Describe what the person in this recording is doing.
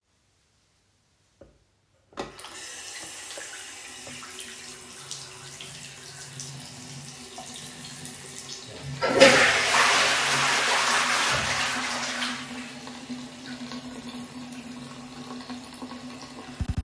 I turned on the tap and let the water run. While the water was still running I flushed the toilet so both sounds overlapped briefly. I then turned off the tap.